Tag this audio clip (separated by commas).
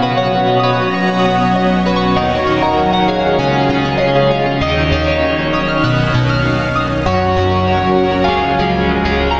Music, Musical instrument